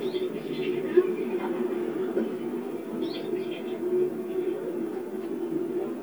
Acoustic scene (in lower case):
park